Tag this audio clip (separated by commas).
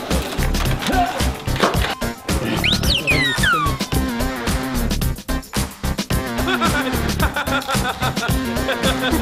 Speech, Music